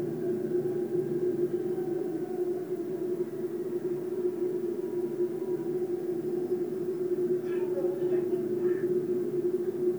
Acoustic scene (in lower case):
subway train